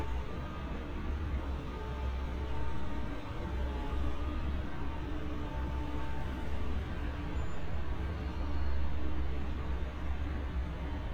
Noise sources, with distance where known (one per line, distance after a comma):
engine of unclear size